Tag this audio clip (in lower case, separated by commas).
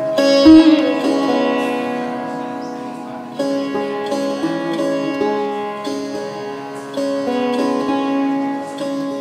sitar, musical instrument, plucked string instrument, music, bowed string instrument